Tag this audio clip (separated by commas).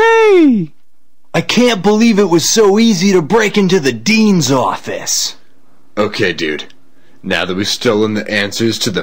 Speech